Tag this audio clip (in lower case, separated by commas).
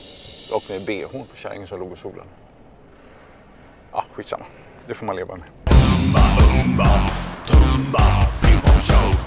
music, speech